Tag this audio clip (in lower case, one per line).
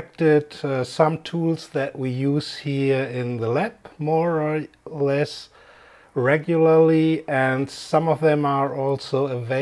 speech